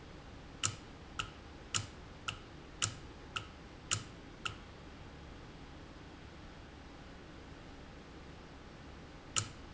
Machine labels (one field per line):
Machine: valve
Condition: normal